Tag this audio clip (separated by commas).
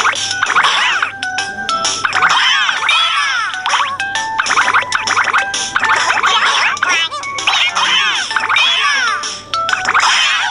Music